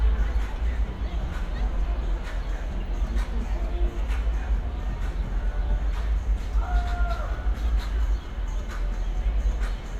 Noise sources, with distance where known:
music from a fixed source, near

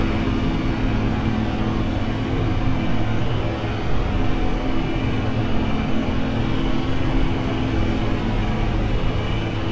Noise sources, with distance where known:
engine of unclear size, near

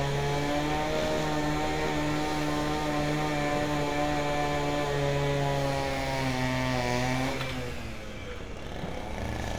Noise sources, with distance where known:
small-sounding engine, near

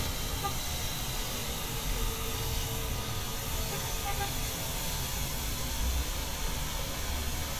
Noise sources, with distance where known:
engine of unclear size; car horn

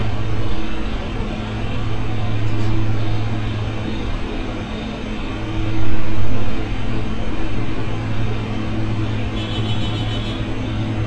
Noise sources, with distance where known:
engine of unclear size, near; car horn, near

